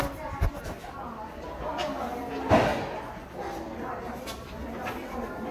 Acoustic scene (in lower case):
crowded indoor space